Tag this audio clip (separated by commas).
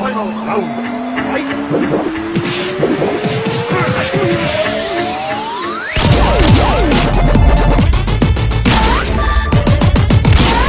Dubstep, Electronic music, Music